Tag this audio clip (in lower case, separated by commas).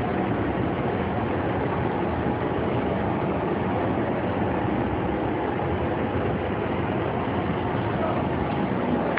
speech